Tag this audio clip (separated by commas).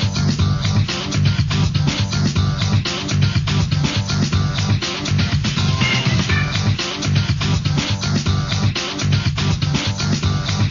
Music